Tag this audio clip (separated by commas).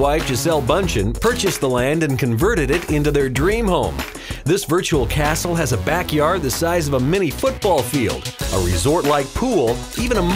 Speech, Music